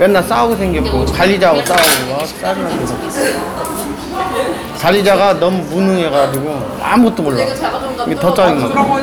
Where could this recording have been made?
in a cafe